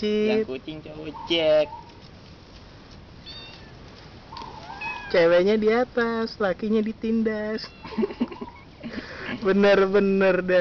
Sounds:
speech, cat, animal, domestic animals, meow

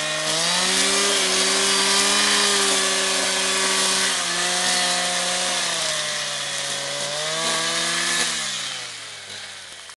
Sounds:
tools, power tool

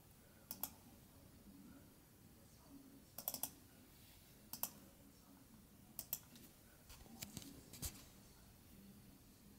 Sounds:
inside a small room

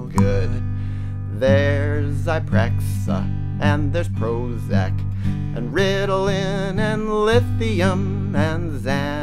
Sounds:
music

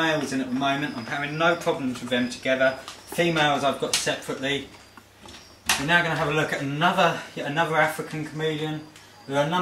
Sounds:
speech, inside a large room or hall

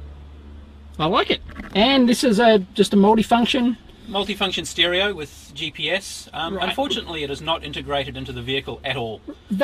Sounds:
speech

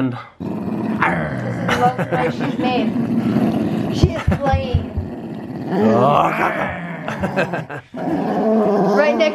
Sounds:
growling, speech, whimper (dog)

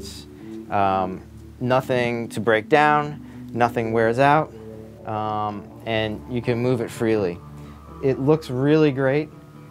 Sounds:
music, speech

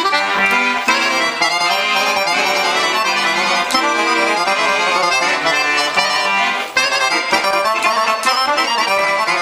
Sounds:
sound effect, music

